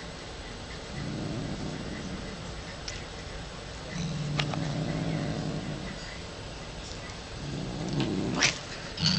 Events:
0.0s-9.1s: mechanisms
0.7s-2.2s: growling
2.8s-2.9s: generic impact sounds
3.8s-5.6s: growling
4.3s-4.6s: generic impact sounds
6.8s-7.0s: surface contact
7.0s-7.1s: generic impact sounds
7.2s-8.5s: growling
7.9s-8.0s: generic impact sounds

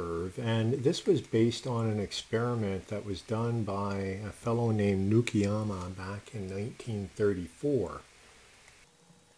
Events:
0.0s-9.3s: noise
0.0s-6.2s: man speaking
6.3s-8.1s: man speaking

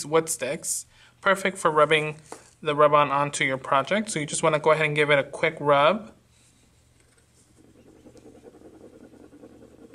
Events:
0.0s-0.8s: man speaking
0.0s-9.9s: mechanisms
0.8s-1.1s: breathing
1.2s-2.1s: man speaking
2.2s-2.4s: tap
2.6s-6.1s: man speaking
6.3s-9.9s: scratch
8.1s-8.2s: tick
9.9s-9.9s: tick

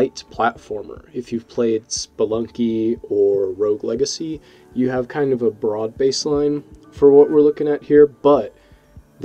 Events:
0.0s-4.4s: man speaking
0.0s-9.2s: music
4.7s-6.7s: man speaking
6.9s-8.5s: man speaking

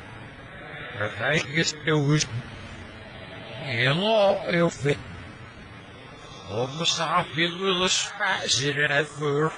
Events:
0.0s-9.5s: mechanisms
0.9s-2.2s: speech synthesizer
3.6s-5.0s: speech synthesizer
6.5s-9.5s: speech synthesizer

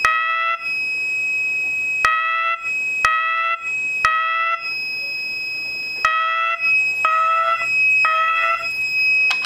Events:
0.0s-9.4s: alarm
0.0s-9.4s: mechanisms
1.6s-1.9s: generic impact sounds

